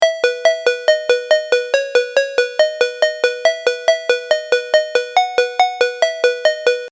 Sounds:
alarm, ringtone, telephone

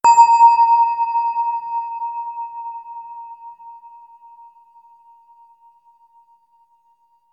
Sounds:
bell

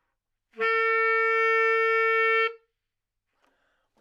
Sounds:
musical instrument, wind instrument, music

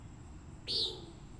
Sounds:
wild animals, bird, animal

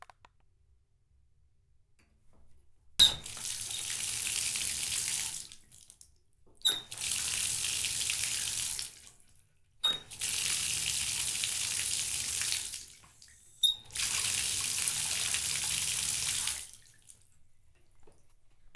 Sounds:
water tap, home sounds

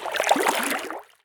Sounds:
liquid, splatter

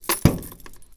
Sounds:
car, vehicle, motor vehicle (road)

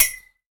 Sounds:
glass, clink

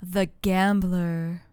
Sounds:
female speech, speech, human voice

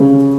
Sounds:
piano, musical instrument, music, keyboard (musical)

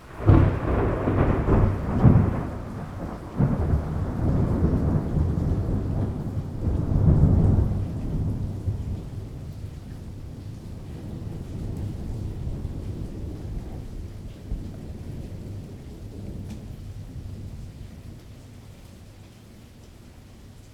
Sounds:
thunderstorm, thunder

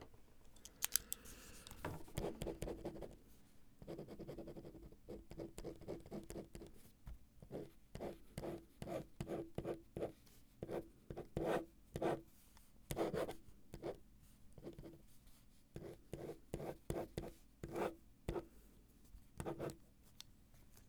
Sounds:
domestic sounds, writing

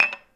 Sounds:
home sounds, dishes, pots and pans, glass

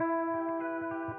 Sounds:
music, electric guitar, musical instrument, guitar, plucked string instrument

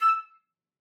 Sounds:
musical instrument, wind instrument, music

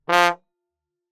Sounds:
music, brass instrument, musical instrument

